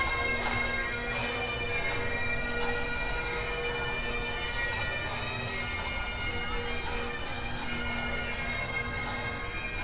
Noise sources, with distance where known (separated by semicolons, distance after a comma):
music from a fixed source, near; large crowd, near